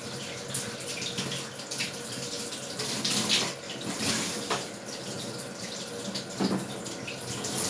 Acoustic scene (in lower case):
restroom